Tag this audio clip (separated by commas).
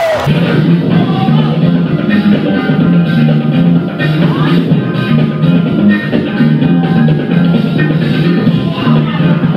Music